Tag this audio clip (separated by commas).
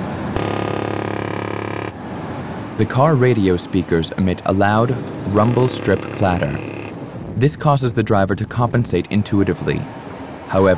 Vehicle, Truck, Speech